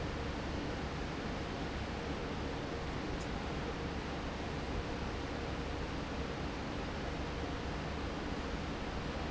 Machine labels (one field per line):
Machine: fan